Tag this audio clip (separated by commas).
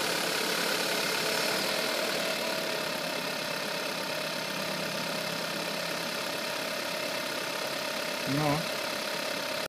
Engine, Vehicle, Speech, Medium engine (mid frequency), Idling